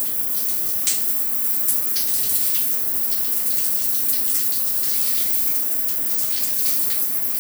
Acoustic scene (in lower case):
restroom